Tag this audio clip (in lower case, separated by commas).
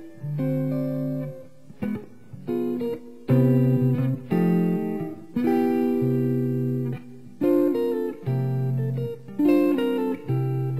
guitar, acoustic guitar, music